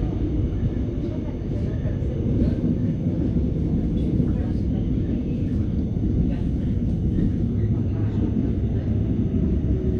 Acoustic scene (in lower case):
subway train